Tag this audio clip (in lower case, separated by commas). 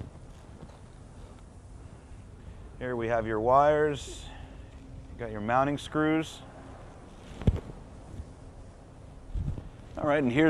speech